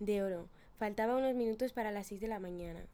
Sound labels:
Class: speech